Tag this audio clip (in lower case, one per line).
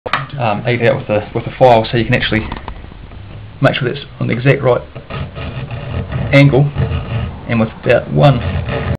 speech